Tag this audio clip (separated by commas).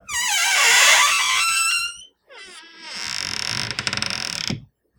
Door, Squeak, home sounds